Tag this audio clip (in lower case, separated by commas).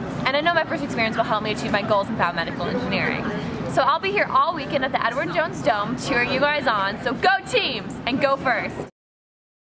speech